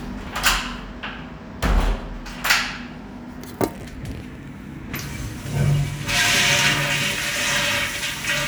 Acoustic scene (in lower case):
restroom